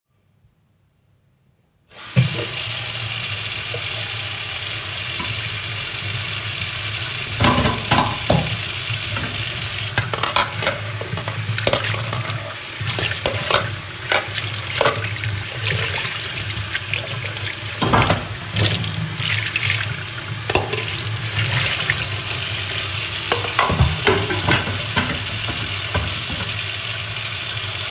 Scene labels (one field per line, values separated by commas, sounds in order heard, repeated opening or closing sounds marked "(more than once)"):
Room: kitchen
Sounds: running water, cutlery and dishes